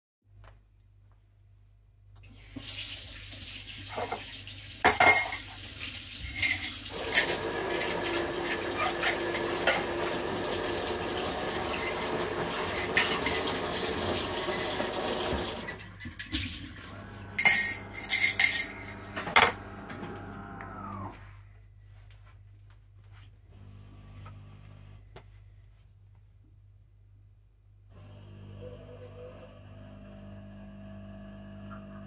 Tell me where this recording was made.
kitchen